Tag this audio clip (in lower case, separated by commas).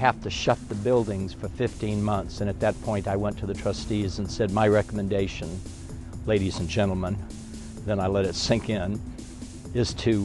speech, music